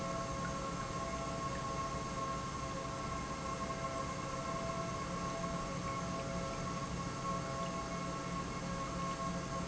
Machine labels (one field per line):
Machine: pump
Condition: normal